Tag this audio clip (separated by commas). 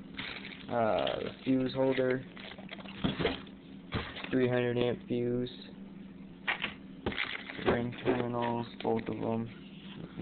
inside a small room, Speech